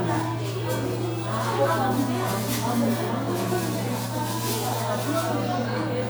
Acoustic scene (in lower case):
crowded indoor space